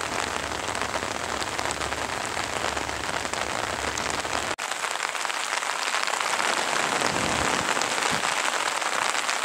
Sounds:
raining

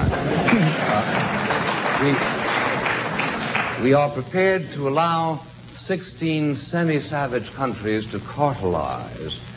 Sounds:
Speech, monologue, man speaking

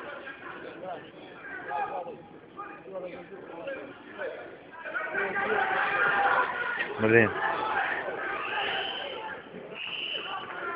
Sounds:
Speech, inside a public space

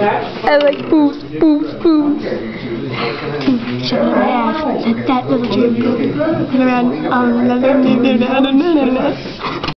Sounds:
Speech

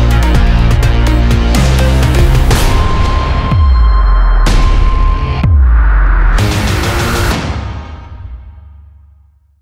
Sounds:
Music

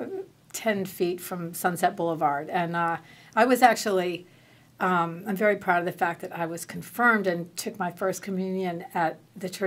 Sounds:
Speech

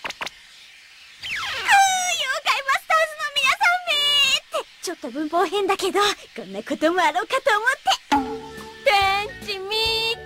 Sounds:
Music, Speech

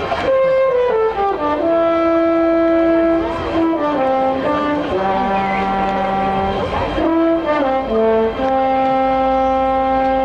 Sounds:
inside a large room or hall, Music

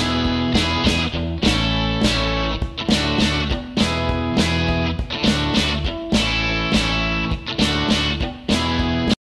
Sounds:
Electric guitar, Strum, Music, Plucked string instrument, Guitar, Musical instrument

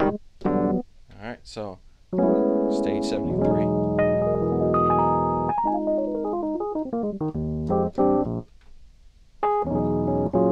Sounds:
Piano, Speech, Keyboard (musical), Electric piano, Music, Musical instrument

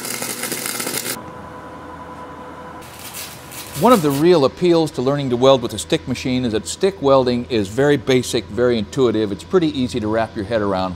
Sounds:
arc welding

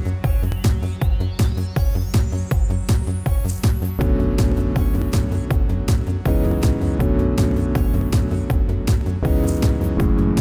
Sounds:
Music

